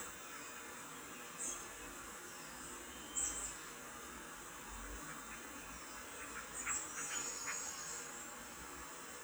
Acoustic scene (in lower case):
park